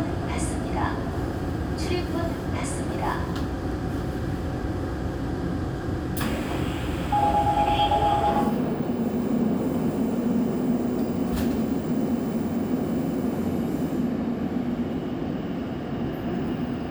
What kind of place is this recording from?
subway train